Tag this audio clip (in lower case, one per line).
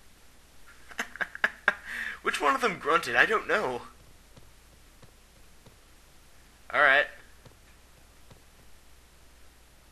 speech